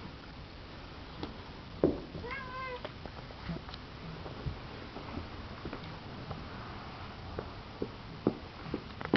A cat meows with faint sounds of walking, tapping and a machine running